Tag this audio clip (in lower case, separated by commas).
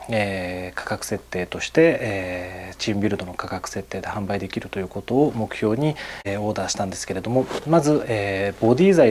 speech